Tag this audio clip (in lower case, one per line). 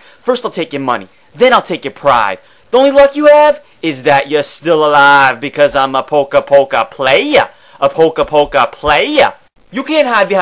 speech